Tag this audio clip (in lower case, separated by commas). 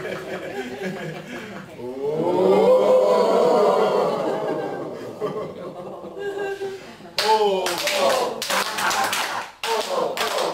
laughter, clapping, snicker